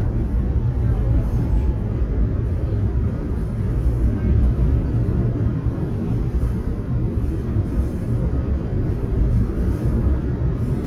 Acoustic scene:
subway train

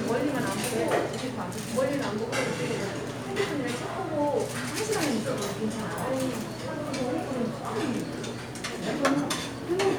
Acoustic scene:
restaurant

